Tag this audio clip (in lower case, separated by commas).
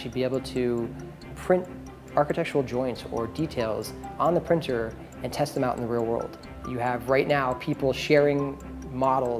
music, speech